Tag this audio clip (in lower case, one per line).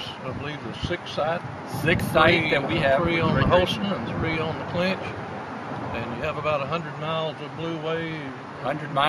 speech